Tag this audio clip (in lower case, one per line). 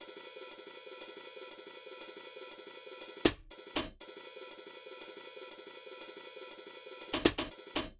hi-hat
music
cymbal
percussion
musical instrument